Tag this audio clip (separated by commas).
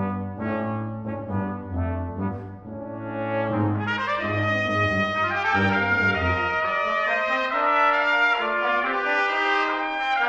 playing french horn, French horn, Music